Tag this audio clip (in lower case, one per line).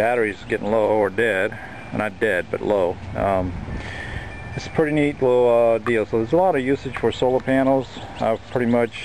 speech